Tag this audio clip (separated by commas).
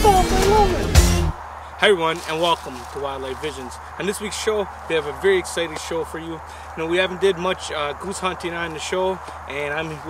Speech, Music